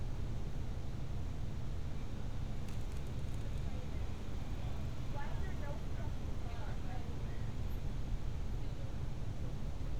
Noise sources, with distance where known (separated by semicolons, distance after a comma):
person or small group talking, far